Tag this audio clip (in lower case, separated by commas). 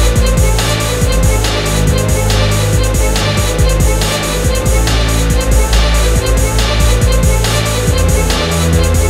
electronica, electronic music, music